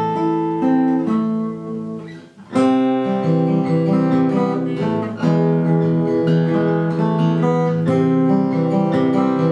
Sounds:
Plucked string instrument, Musical instrument, Strum, Music, Acoustic guitar, Guitar

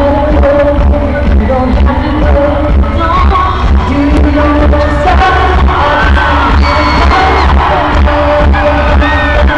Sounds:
Music, Funk

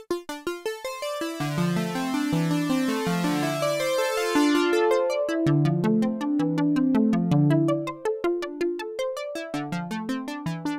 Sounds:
Keyboard (musical), Music, Musical instrument, Piano, Electric piano

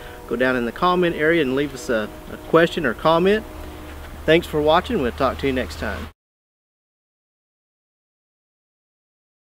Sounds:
Vehicle

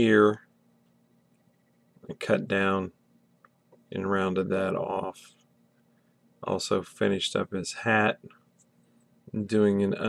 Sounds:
Speech

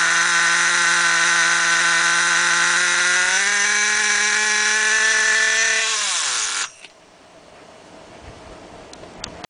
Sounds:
Engine, vroom

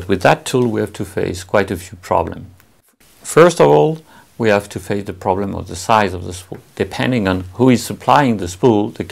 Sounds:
Speech

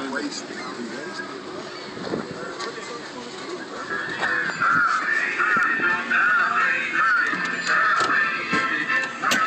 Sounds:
Reverberation, Speech, Music

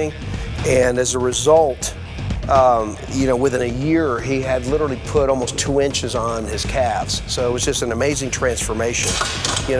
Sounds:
Speech, Music

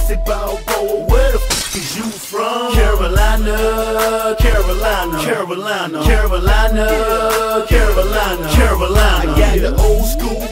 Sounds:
Dance music, Music, Rhythm and blues

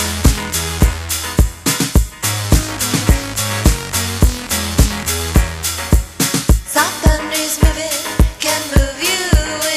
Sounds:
Music

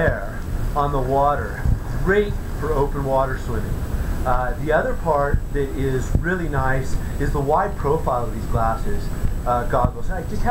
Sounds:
Gurgling, Speech

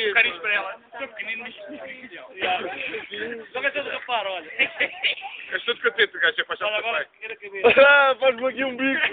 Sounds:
Speech

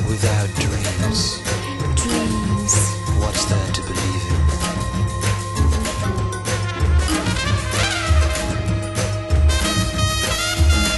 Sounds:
Speech, Music

